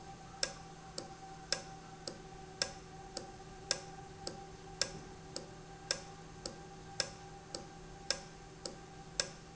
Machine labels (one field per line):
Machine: valve